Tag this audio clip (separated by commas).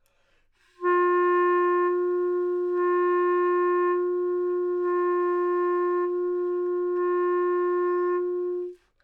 Wind instrument, Music, Musical instrument